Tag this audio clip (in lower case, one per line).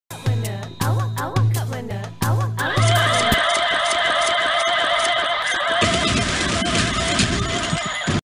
music